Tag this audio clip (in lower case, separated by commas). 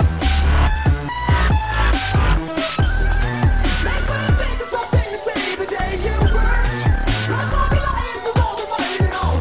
music